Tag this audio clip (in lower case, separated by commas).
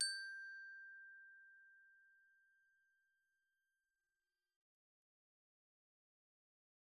music, percussion, glockenspiel, musical instrument, mallet percussion